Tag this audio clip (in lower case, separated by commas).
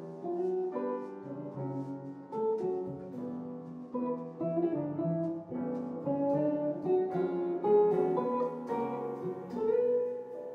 music